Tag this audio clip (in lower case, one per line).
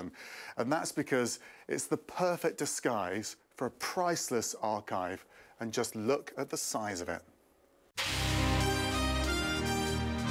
speech
music